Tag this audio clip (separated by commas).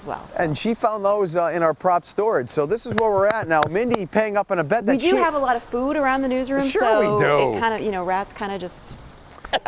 Speech